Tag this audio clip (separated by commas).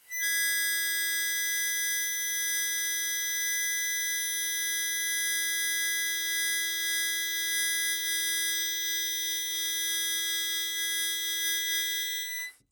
Music, Harmonica, Musical instrument